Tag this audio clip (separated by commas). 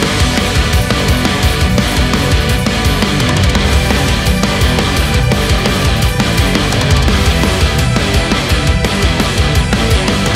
Music, outside, urban or man-made